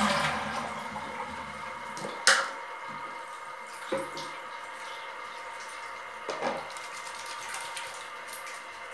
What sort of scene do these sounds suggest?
restroom